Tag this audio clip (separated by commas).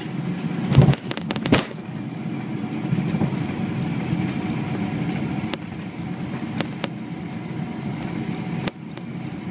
outside, rural or natural, Vehicle